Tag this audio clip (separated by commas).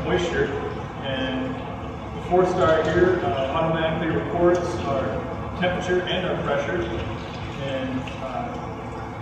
Speech